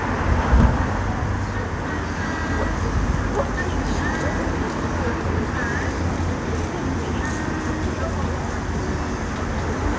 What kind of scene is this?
street